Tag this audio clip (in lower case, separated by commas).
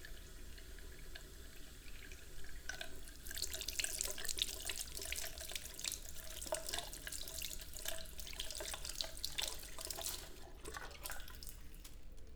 domestic sounds, sink (filling or washing)